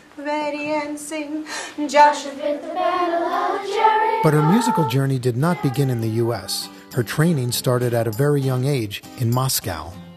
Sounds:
Speech, Music

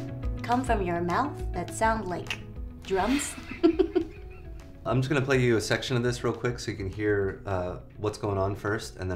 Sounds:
Music, Speech

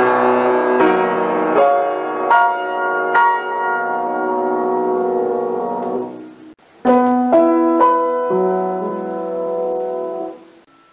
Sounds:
Music

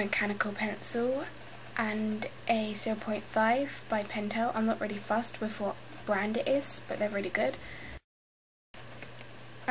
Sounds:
Speech

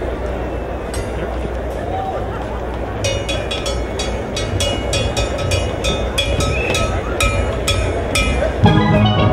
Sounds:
Music, Steelpan

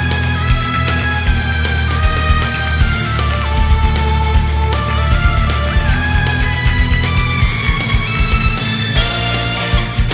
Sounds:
Music

